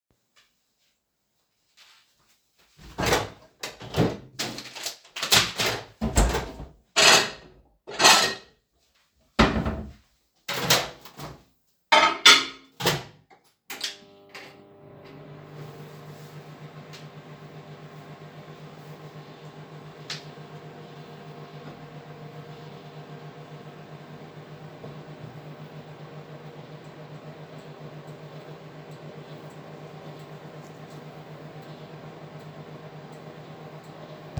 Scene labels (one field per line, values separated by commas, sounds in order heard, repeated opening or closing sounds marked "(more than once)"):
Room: hallway, bathroom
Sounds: microwave, cutlery and dishes, wardrobe or drawer